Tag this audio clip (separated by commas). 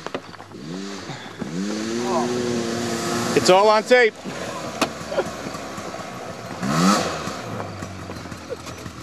Speech, Vehicle